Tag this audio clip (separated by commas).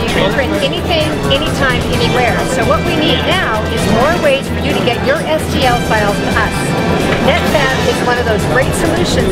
Music, Speech